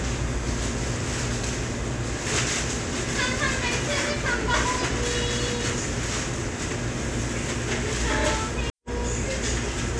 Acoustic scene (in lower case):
restaurant